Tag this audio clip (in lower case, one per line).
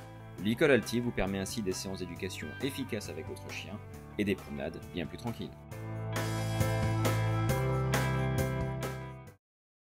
speech
music